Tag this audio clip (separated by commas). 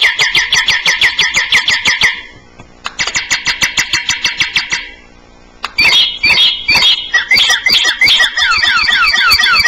Bird